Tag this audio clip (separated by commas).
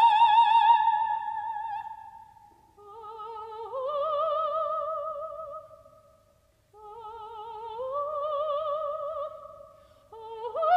Music